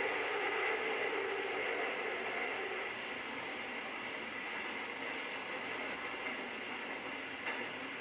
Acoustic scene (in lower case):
subway train